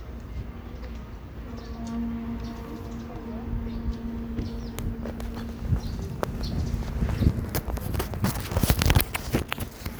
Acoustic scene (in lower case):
park